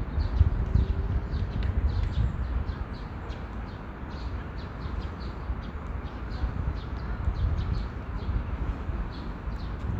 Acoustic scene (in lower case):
park